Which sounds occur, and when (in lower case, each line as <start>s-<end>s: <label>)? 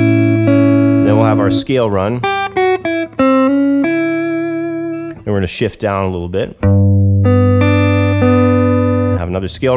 0.0s-1.6s: music
0.0s-9.7s: mechanisms
1.0s-2.2s: man speaking
2.2s-5.2s: music
5.2s-6.6s: man speaking
6.6s-9.2s: music
9.2s-9.7s: man speaking